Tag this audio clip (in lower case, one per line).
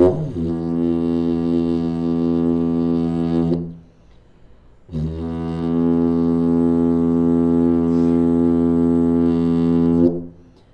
didgeridoo